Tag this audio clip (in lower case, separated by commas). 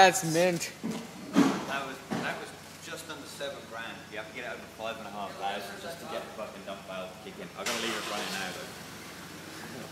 vehicle, speech